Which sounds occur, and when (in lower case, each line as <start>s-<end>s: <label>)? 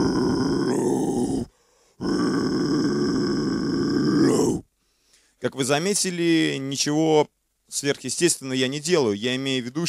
0.0s-1.4s: grunt
0.0s-9.8s: background noise
1.4s-1.9s: breathing
2.0s-4.6s: grunt
4.7s-5.3s: breathing
5.4s-7.2s: male speech
7.7s-9.8s: male speech